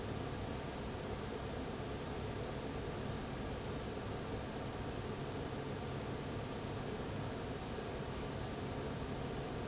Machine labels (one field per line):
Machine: fan